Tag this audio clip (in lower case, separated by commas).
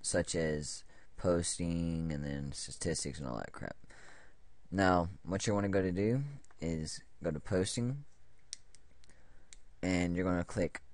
speech